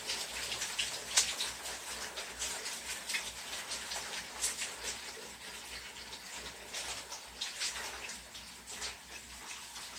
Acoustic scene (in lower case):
restroom